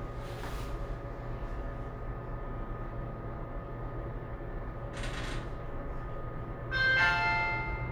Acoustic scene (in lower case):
elevator